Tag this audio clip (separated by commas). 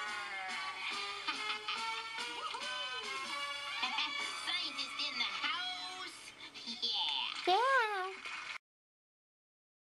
Speech, Music